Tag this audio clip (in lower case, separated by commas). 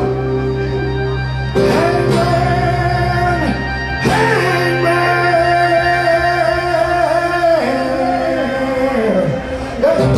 guitar, male singing, musical instrument, blues, plucked string instrument, singing, music, acoustic guitar